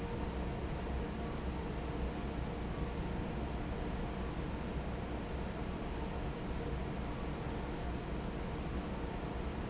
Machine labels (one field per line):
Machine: fan